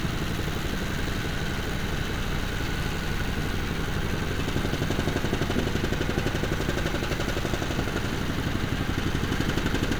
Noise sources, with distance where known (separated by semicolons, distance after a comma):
jackhammer, near